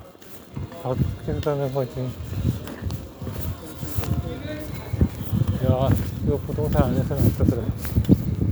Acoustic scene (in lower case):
residential area